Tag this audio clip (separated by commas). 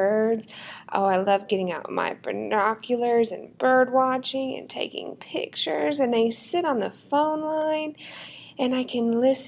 Speech